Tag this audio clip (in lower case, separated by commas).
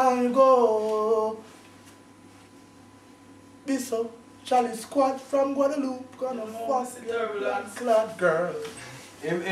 inside a small room, speech